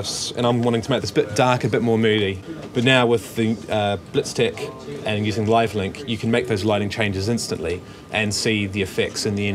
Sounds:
speech

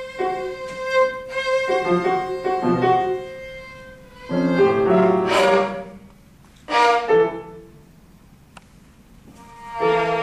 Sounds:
musical instrument, music, fiddle

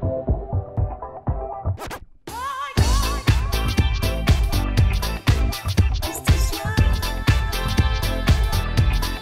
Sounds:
scratching (performance technique)

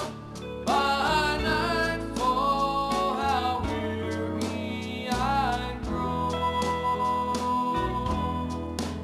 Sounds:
gospel music, music

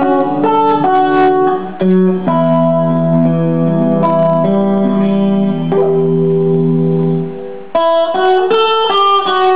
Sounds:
strum, plucked string instrument, guitar, electric guitar, music, musical instrument

